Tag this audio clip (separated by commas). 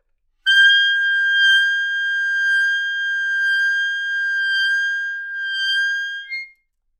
Music, Wind instrument, Musical instrument